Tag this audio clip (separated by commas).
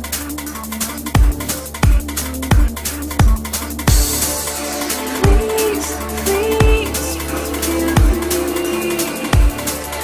Electronic music, Music, Dubstep